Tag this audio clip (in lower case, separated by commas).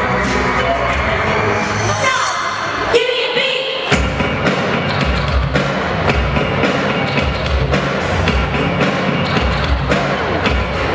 music, speech